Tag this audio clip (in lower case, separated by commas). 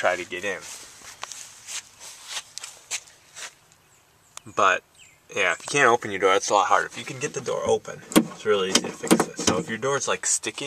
door